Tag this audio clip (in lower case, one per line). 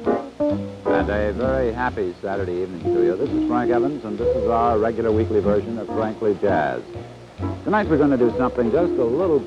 musical instrument
plucked string instrument
speech
acoustic guitar
guitar
music